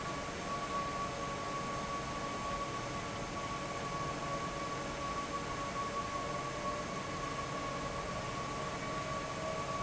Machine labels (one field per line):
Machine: fan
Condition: abnormal